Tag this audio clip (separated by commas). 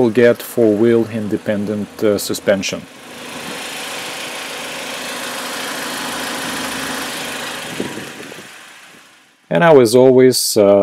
Vehicle, Heavy engine (low frequency), outside, urban or man-made, Speech, Engine